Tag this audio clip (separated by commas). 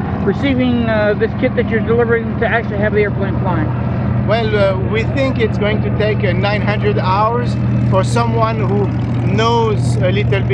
Speech, Vehicle